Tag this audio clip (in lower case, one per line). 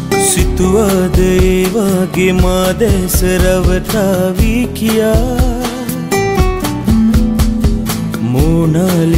music